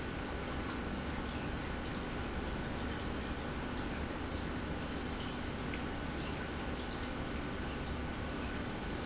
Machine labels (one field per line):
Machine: pump